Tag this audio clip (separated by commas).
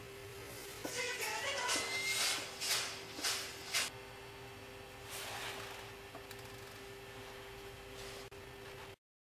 Music